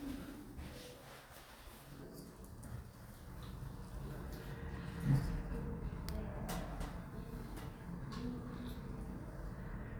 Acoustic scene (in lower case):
elevator